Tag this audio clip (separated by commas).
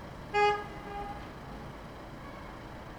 Motor vehicle (road), Vehicle, Car, Traffic noise, Alarm, Vehicle horn